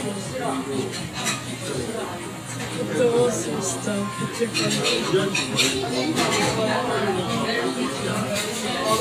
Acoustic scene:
crowded indoor space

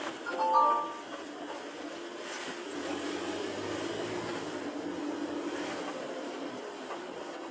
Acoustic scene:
car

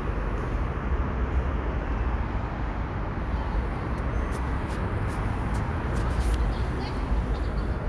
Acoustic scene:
residential area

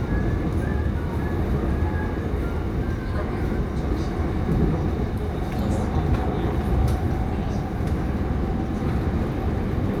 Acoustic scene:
subway train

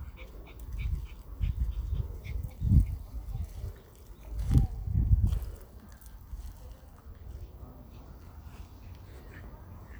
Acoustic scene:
park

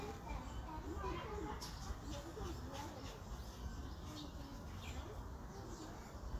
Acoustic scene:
park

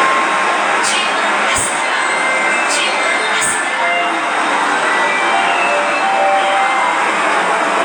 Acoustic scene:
subway station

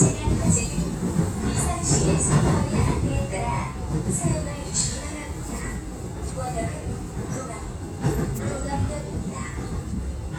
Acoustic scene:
subway train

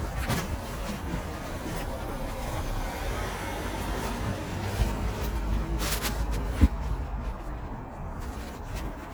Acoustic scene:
residential area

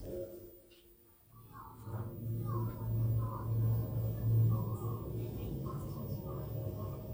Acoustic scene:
elevator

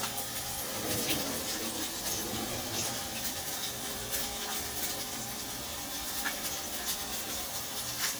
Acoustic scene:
kitchen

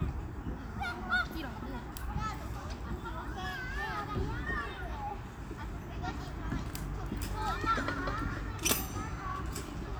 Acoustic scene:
park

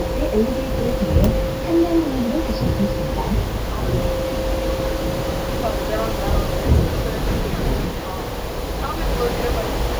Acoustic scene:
bus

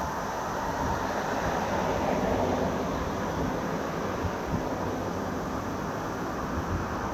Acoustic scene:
street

